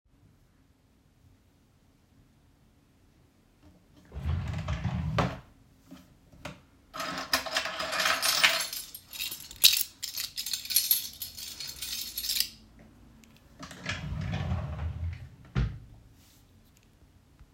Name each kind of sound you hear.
wardrobe or drawer, keys